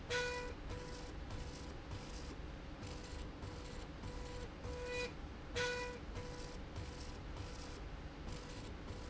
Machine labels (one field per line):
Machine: slide rail